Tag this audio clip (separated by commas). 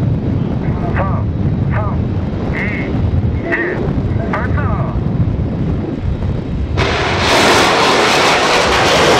missile launch